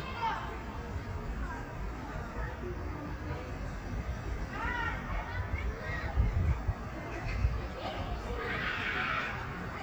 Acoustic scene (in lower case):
park